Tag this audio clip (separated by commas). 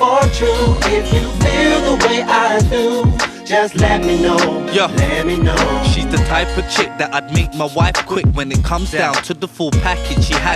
Independent music, Rhythm and blues, Music